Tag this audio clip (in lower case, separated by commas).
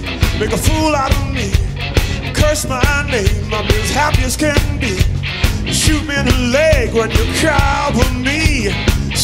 music